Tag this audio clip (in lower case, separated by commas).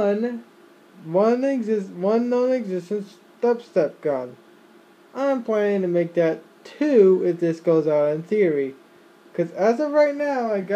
speech